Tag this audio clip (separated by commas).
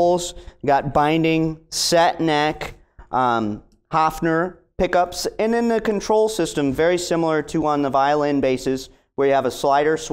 Speech